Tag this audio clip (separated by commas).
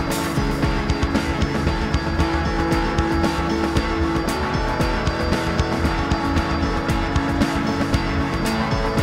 Music